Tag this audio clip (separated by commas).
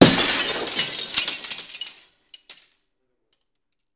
Shatter, Glass